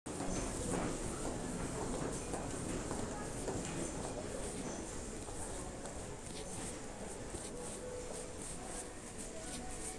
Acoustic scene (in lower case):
crowded indoor space